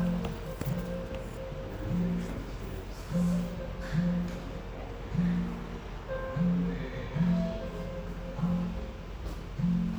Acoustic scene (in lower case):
cafe